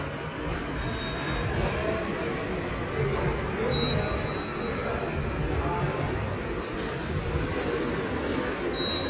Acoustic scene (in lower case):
subway station